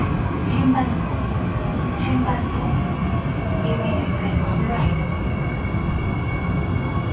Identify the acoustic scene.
subway train